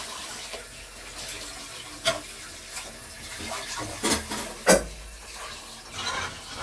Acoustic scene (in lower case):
kitchen